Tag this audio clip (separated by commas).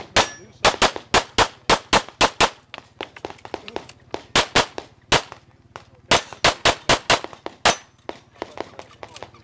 Tap